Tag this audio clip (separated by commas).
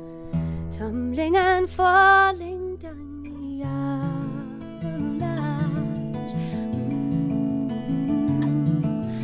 Music